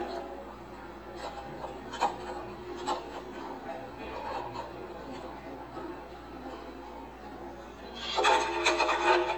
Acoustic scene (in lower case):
cafe